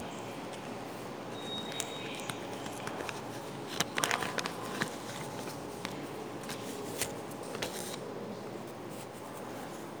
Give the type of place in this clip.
subway station